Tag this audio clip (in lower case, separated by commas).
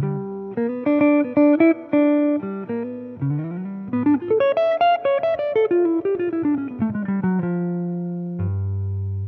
effects unit, electric guitar, guitar, plucked string instrument, speech, musical instrument, music